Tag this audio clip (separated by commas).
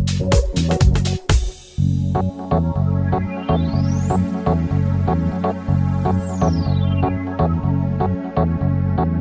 Music